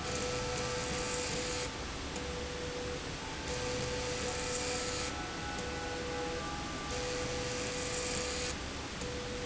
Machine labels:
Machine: slide rail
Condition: abnormal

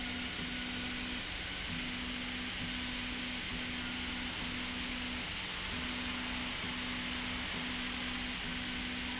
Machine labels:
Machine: slide rail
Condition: normal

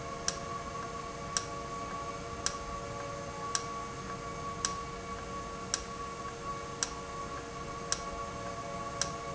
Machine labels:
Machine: valve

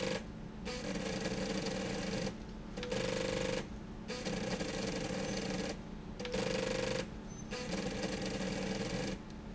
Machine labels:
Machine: slide rail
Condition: abnormal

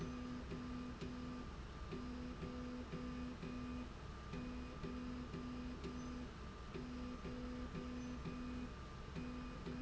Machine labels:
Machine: slide rail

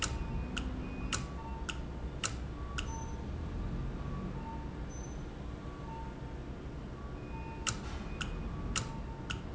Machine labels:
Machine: valve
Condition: normal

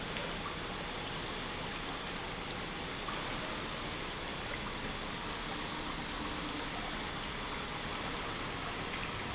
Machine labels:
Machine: pump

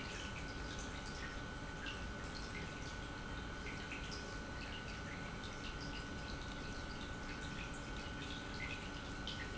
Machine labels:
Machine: pump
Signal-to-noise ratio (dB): 6 dB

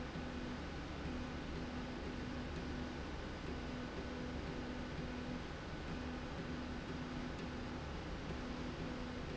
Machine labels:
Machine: slide rail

